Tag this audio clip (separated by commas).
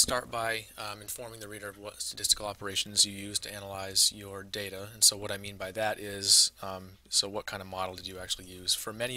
Speech